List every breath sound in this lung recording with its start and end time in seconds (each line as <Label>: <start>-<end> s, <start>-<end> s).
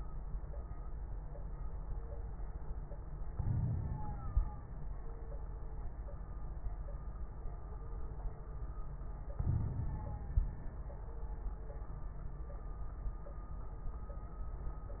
Inhalation: 3.29-4.67 s, 9.40-10.62 s
Crackles: 3.29-4.67 s, 9.40-10.62 s